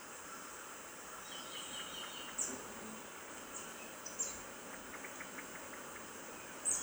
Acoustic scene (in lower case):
park